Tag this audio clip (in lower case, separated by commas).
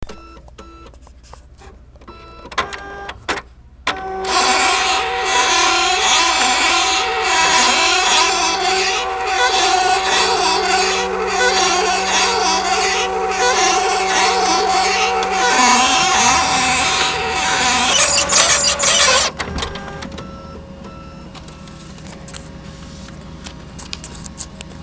printer, mechanisms